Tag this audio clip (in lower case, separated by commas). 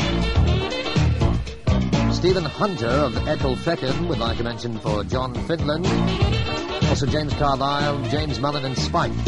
speech, radio, music